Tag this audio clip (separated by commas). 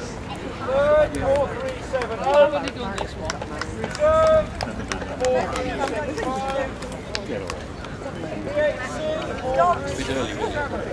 Domestic animals, Yip, Dog, Animal, Speech